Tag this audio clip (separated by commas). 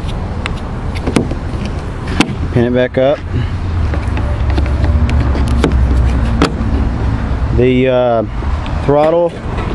Speech